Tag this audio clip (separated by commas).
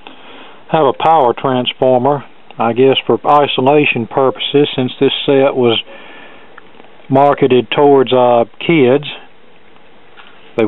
Speech